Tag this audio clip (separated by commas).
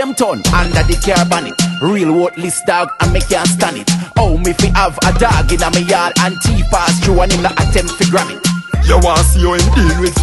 Music